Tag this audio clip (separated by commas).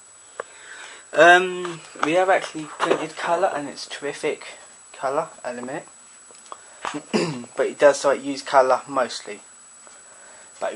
Speech